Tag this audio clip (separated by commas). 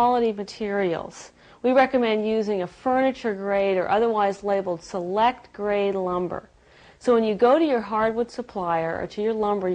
Speech